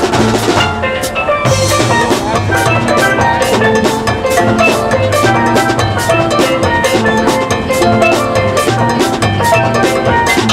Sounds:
music

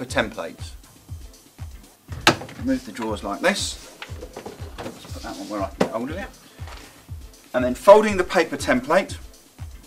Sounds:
music, speech, drawer open or close

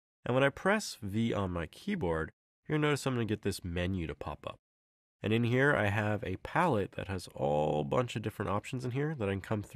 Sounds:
speech

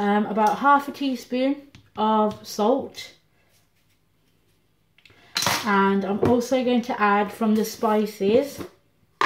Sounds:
speech

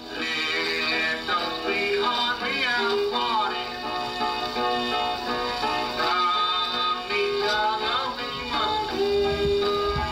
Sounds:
country, music, musical instrument

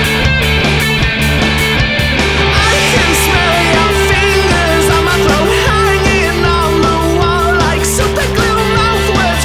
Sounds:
music

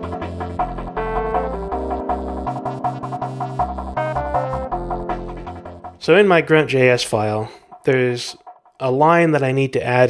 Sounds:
speech, music

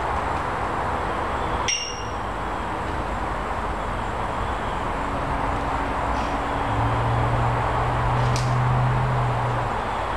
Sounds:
white noise

